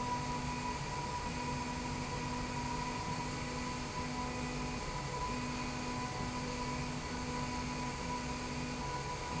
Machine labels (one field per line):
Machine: slide rail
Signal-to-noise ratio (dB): -6 dB